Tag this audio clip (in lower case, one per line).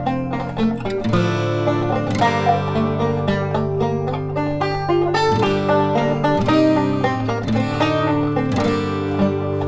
musical instrument
music